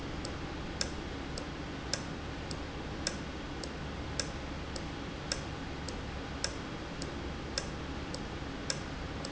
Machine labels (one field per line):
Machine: valve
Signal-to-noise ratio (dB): -6 dB